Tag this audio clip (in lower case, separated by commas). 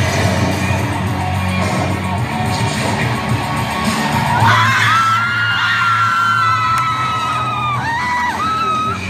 inside a large room or hall, music, speech